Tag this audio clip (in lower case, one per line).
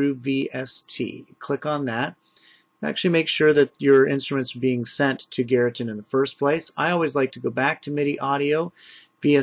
speech